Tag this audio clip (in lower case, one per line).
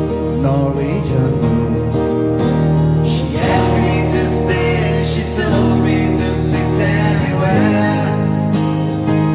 music